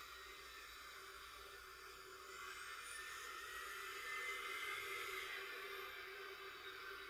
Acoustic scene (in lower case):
residential area